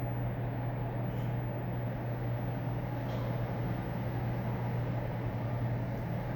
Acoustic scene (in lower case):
elevator